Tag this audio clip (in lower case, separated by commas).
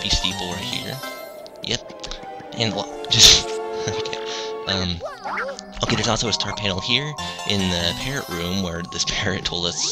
speech